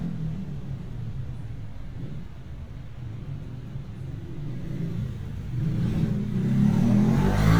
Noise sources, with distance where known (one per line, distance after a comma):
medium-sounding engine, near